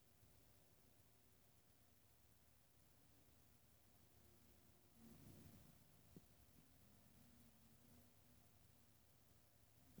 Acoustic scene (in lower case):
elevator